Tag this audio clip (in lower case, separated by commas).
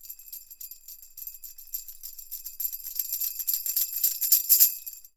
percussion, music, musical instrument, tambourine